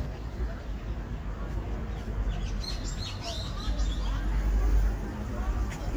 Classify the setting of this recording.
park